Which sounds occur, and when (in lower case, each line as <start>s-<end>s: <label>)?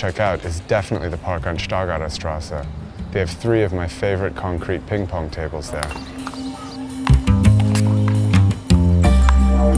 0.0s-2.6s: male speech
0.0s-9.7s: wind
1.3s-4.9s: music
2.2s-3.0s: chirp
3.1s-5.8s: male speech
5.7s-9.7s: music
5.7s-5.9s: tap
5.8s-6.8s: chirp
6.2s-6.4s: bouncing
6.9s-7.2s: tap
7.6s-7.9s: bouncing
9.2s-9.4s: tap